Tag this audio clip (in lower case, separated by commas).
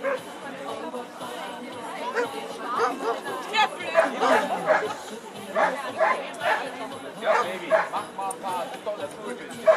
dog, speech, dog bow-wow, bow-wow, domestic animals, music, animal